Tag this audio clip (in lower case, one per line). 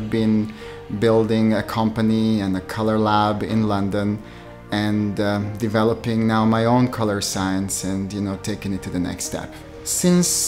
speech
music